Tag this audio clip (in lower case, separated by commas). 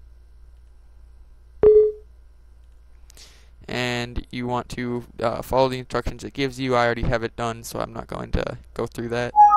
speech